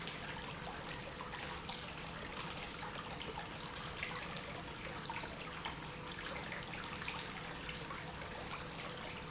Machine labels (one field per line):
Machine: pump